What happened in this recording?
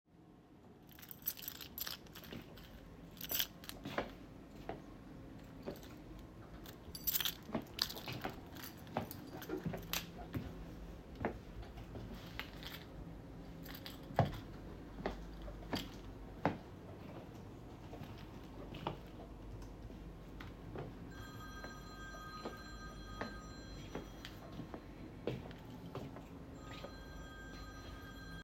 I walked around in the room with my keys in my hand while people were typing and a phone was ringing.